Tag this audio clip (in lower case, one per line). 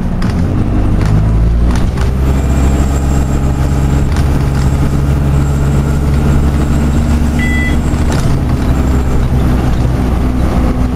vehicle
bus